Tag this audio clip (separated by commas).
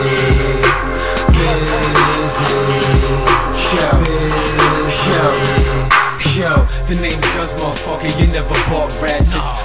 Punk rock, Music